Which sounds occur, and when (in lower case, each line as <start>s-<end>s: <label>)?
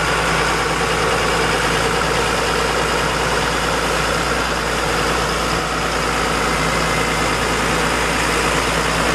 0.0s-9.1s: motor vehicle (road)